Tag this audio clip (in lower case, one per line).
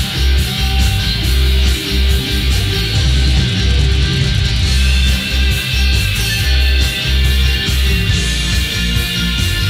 music